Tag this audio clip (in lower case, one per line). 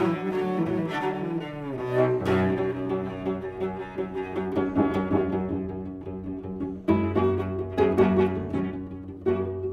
bowed string instrument
music
musical instrument
cello